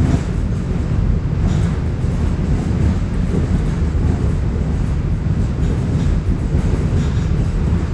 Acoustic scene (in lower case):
subway train